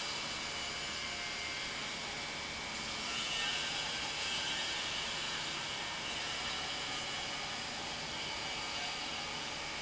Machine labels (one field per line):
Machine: pump